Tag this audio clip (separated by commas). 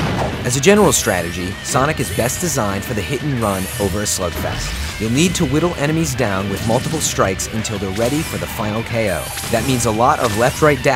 Speech, Music